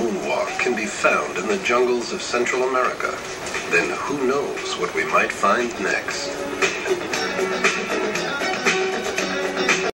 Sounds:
music, speech

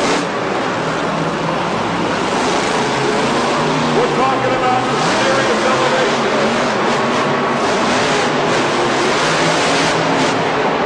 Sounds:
speech, vehicle

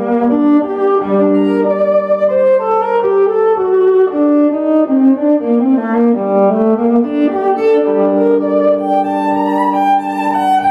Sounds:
musical instrument, music, violin

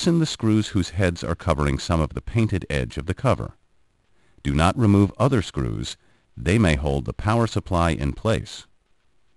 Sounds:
speech

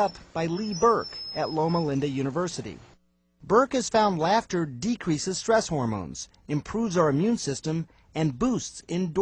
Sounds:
speech, snicker

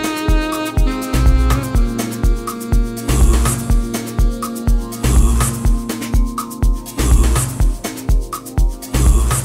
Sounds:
music

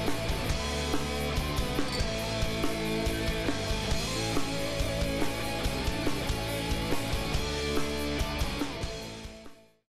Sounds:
music

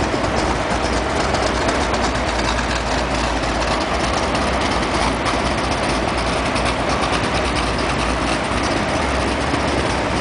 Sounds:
vehicle, car

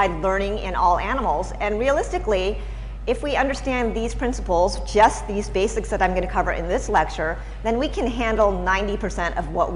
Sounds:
speech

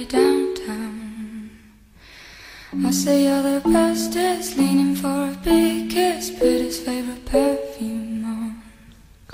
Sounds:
speech, music

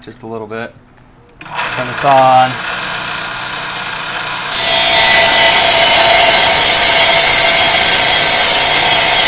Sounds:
speech, tools

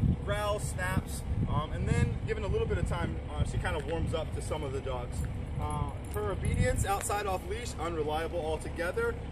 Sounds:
speech

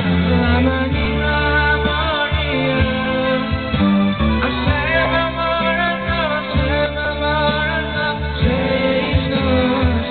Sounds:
music, male singing

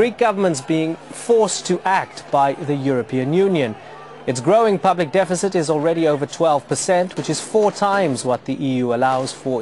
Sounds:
speech

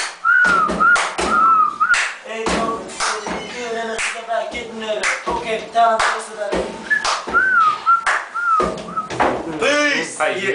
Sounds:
whistling

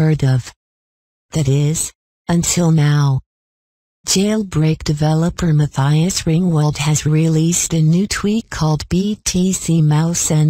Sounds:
speech

